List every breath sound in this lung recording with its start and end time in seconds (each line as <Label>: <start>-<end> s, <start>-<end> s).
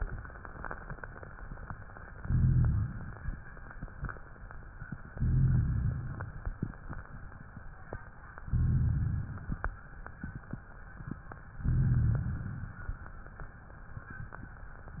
Inhalation: 2.20-3.15 s, 5.12-6.07 s, 8.46-9.41 s, 11.69-12.64 s
Rhonchi: 2.20-3.15 s, 5.12-6.07 s, 8.46-9.41 s, 11.69-12.64 s